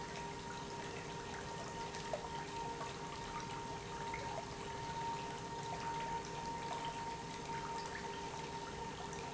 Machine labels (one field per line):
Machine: pump